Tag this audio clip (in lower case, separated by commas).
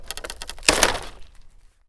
crack, wood